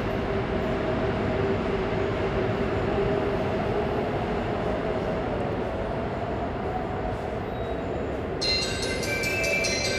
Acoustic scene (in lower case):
subway station